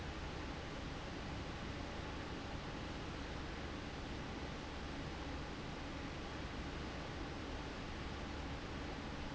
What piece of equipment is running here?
fan